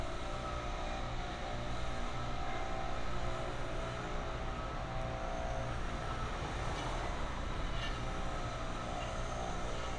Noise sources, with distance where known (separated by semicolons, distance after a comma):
unidentified impact machinery